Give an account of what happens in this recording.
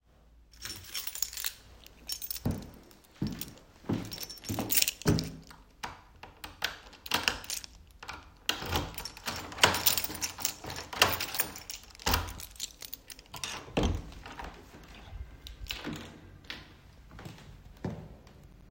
I picked up my keys from the cupboard, walked towards the door, and unlocked it with the keys. Then I opened the door (to some sirens coming from outside), and walked out of the apartment.